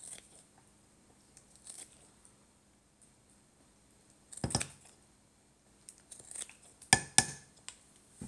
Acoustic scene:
kitchen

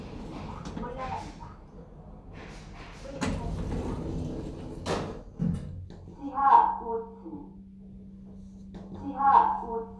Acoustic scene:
elevator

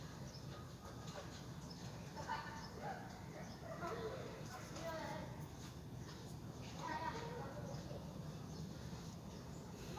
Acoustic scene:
residential area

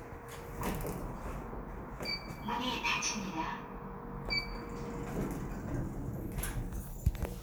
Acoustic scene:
elevator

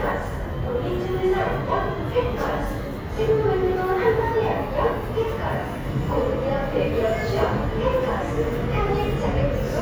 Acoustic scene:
subway station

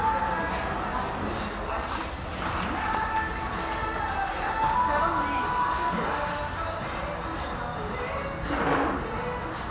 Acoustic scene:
cafe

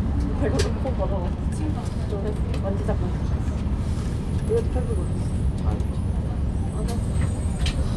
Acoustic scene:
bus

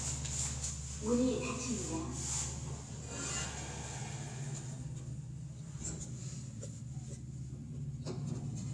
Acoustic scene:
elevator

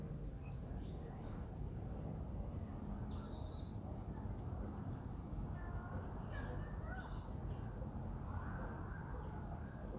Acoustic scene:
residential area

